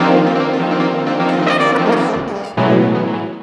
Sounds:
musical instrument
brass instrument
music

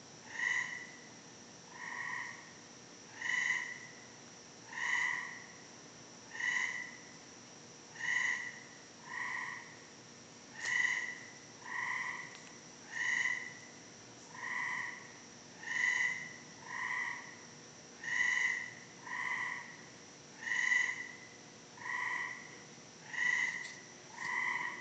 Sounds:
animal
wild animals
frog

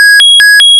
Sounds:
alarm

